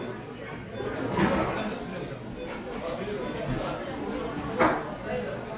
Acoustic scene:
cafe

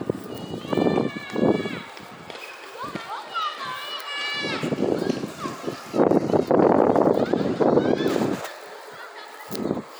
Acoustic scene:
residential area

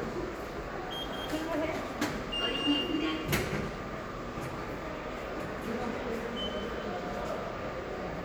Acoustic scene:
subway station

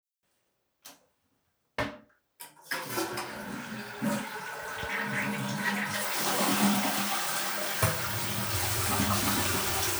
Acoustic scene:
restroom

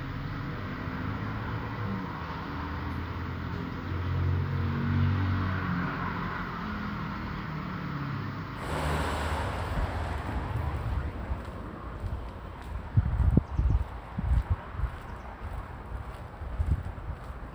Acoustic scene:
street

